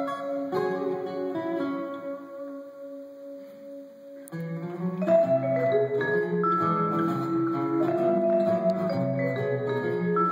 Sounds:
playing vibraphone

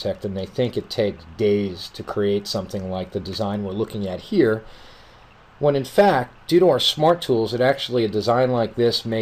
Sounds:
Speech

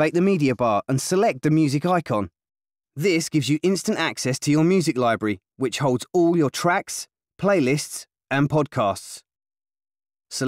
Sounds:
Speech

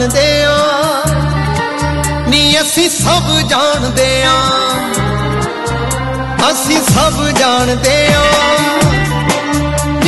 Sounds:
Music of Bollywood, Music

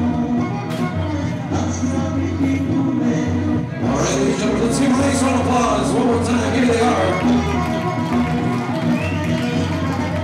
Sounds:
Music, Speech

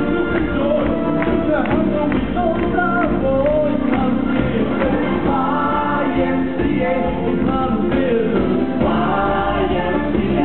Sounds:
Music, Roll, Rock and roll

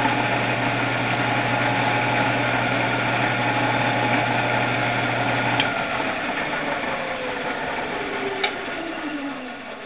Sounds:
Medium engine (mid frequency), Engine

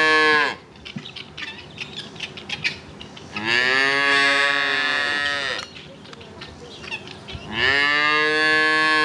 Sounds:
cow lowing

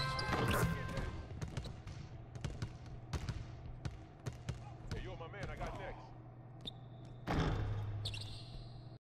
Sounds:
Basketball bounce, Speech, inside a large room or hall

